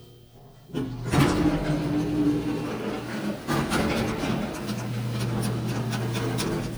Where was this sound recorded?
in an elevator